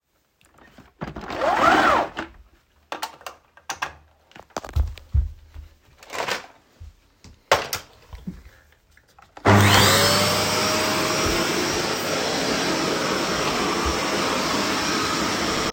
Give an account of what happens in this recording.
I turned on the vacuum cleaner and walked around the living room while vacuuming the floor.